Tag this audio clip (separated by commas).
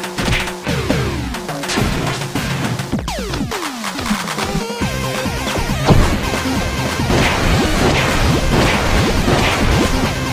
Music